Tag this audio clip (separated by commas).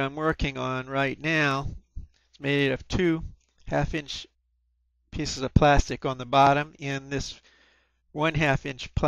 Speech